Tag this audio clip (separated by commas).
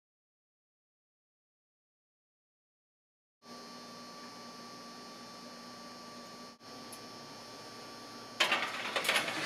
Silence, inside a small room